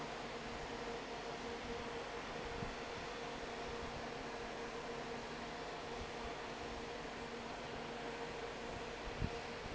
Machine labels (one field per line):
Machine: fan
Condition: normal